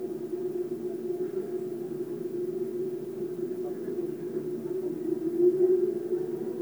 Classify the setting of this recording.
subway train